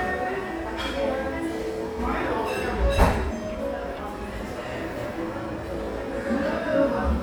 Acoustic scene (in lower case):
cafe